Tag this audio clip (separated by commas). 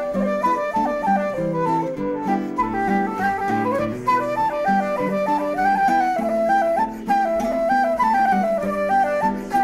Musical instrument, Guitar, Strum, Music, Acoustic guitar